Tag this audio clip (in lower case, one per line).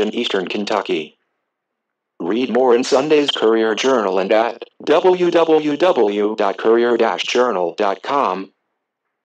speech